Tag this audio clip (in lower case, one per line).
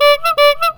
motor vehicle (road)
honking
vehicle
alarm
car